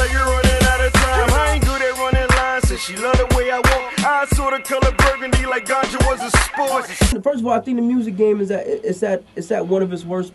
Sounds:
music
speech

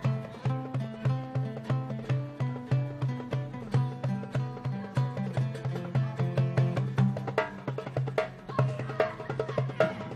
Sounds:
music
speech

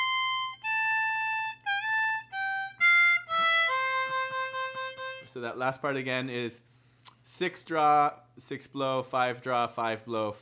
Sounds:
playing harmonica

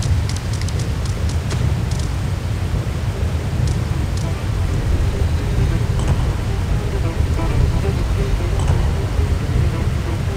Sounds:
music

